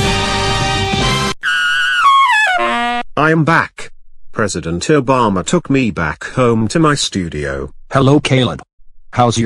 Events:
0.0s-1.3s: sound effect
1.4s-3.0s: sound effect
3.1s-9.4s: conversation
3.1s-3.9s: man speaking
4.3s-7.7s: man speaking
7.8s-8.6s: man speaking

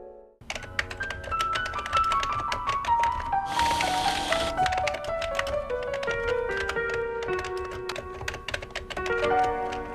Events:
0.0s-9.9s: music
0.5s-1.1s: typewriter
1.2s-2.4s: typewriter
2.5s-3.3s: typewriter
3.5s-4.5s: printer
3.5s-4.5s: typewriter
4.6s-5.5s: typewriter
5.7s-6.3s: typewriter
6.5s-7.0s: typewriter
7.2s-7.7s: typewriter
7.9s-8.3s: typewriter
8.5s-8.8s: typewriter
8.9s-9.3s: typewriter
9.4s-9.8s: typewriter

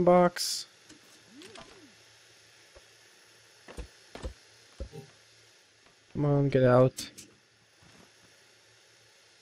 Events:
0.0s-0.6s: male speech
0.0s-9.4s: mechanisms
0.0s-9.4s: video game sound
0.8s-0.9s: tick
1.1s-1.1s: tick
1.3s-2.0s: generic impact sounds
3.6s-3.8s: generic impact sounds
4.1s-4.3s: generic impact sounds
4.7s-5.0s: generic impact sounds
5.8s-5.9s: tick
6.0s-6.2s: tick
6.1s-7.1s: male speech
7.7s-8.1s: surface contact

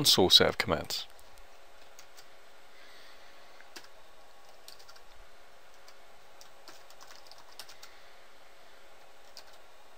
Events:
0.0s-1.1s: man speaking
0.0s-9.9s: background noise
1.8s-2.3s: computer keyboard
2.6s-3.6s: breathing
3.7s-4.0s: computer keyboard
4.4s-4.5s: computer keyboard
4.6s-5.1s: computer keyboard
5.7s-6.0s: computer keyboard
6.3s-6.5s: computer keyboard
6.6s-7.9s: computer keyboard
8.9s-9.1s: computer keyboard
9.2s-9.6s: computer keyboard

